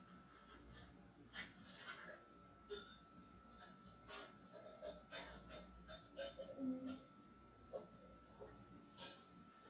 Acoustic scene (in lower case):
kitchen